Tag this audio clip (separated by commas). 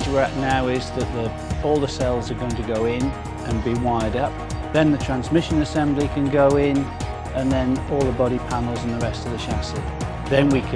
Speech, Music